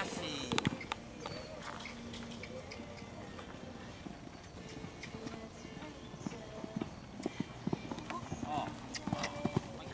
Sound of a horse moving by